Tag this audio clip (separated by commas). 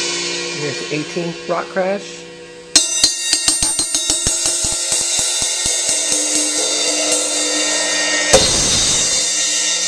Music, Speech